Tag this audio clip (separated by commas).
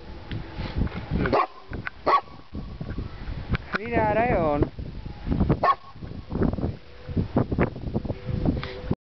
Speech